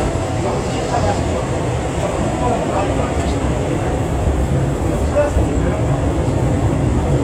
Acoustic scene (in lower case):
subway train